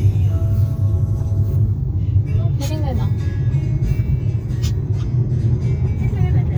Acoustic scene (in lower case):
car